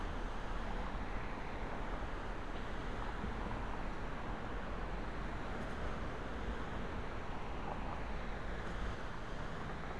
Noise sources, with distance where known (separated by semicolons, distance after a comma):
engine of unclear size